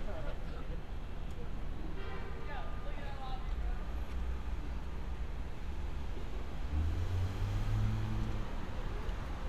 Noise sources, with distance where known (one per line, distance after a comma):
large-sounding engine
car horn
person or small group talking